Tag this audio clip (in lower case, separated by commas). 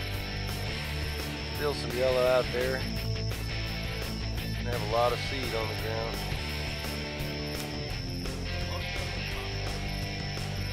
music, speech